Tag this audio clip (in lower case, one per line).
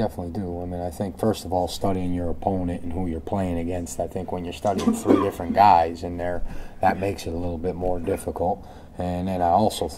speech
inside a small room